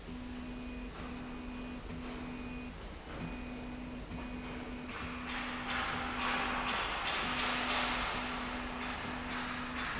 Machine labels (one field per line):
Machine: slide rail